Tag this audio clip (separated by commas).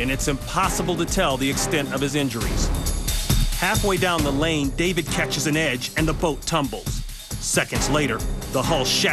Speech, Music